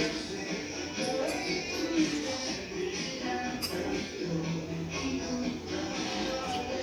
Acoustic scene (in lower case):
restaurant